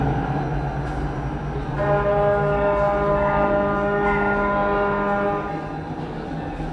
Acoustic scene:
subway station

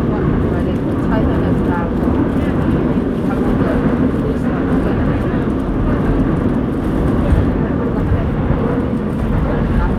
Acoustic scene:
subway train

